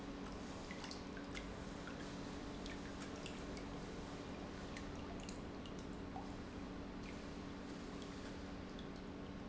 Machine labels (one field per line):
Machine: pump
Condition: normal